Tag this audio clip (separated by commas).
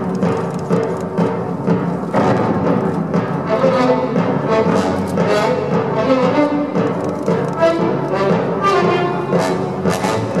Music, Double bass